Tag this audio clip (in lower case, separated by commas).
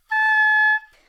music, musical instrument, wind instrument